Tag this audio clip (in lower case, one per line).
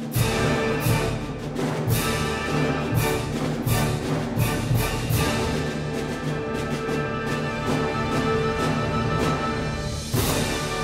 playing timpani